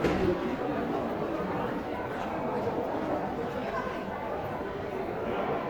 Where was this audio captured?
in a crowded indoor space